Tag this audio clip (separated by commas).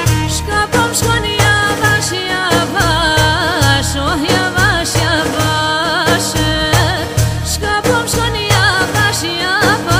Music, Folk music